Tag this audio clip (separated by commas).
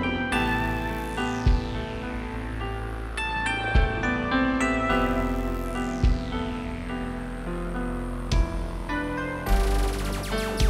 Tender music, Music